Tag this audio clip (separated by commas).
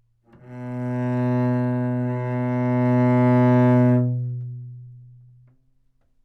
Bowed string instrument, Musical instrument, Music